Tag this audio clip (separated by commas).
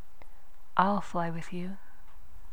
woman speaking, Speech, Human voice